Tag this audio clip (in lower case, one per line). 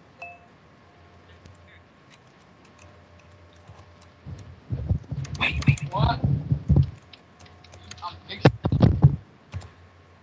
speech